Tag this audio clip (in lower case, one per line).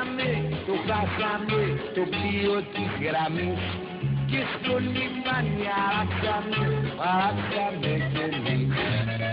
exciting music
music